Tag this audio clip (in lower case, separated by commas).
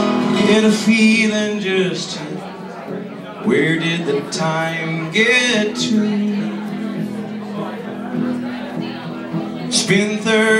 musical instrument, plucked string instrument, guitar, speech, acoustic guitar, music, strum